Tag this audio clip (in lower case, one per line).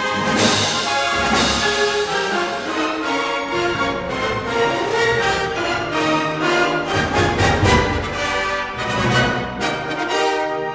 music